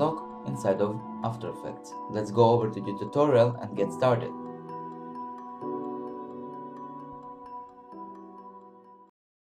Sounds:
speech
music

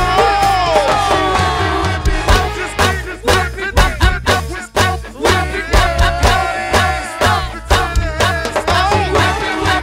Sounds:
music

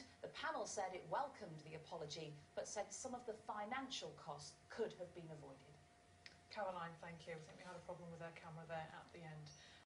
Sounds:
speech

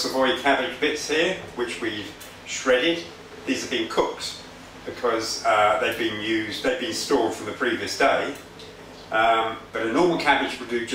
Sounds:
speech

